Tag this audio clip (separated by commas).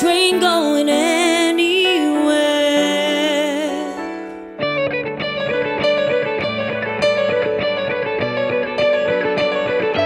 Pop music, Singing, Music, Guitar